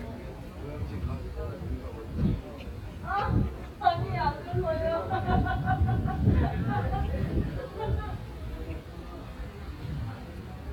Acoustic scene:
residential area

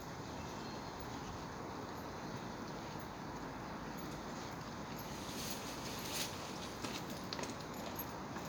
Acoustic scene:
park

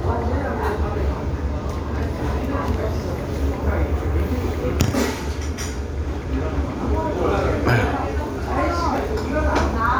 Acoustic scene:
restaurant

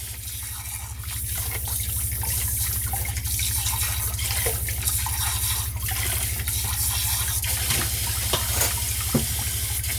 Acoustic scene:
kitchen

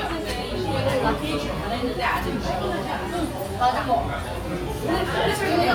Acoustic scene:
restaurant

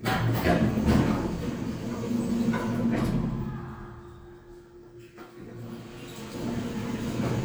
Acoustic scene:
elevator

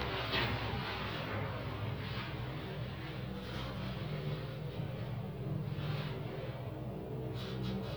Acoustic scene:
elevator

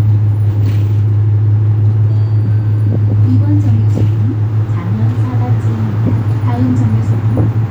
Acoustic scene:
bus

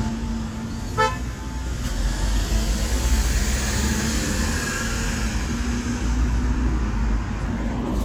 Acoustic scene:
residential area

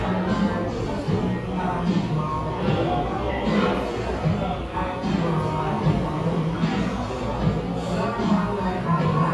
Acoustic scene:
cafe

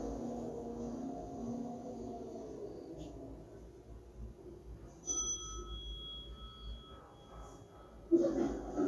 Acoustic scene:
elevator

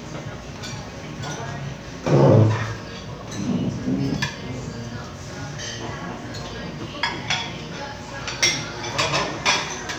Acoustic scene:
crowded indoor space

